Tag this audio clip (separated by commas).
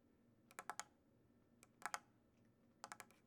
Tap